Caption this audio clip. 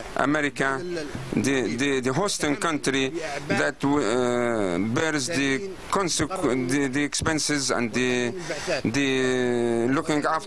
A man gives a speech